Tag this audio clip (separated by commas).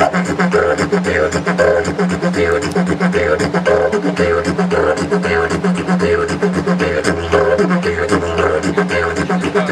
Speech, Music, Didgeridoo